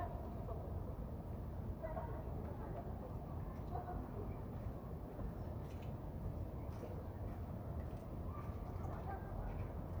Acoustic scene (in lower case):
residential area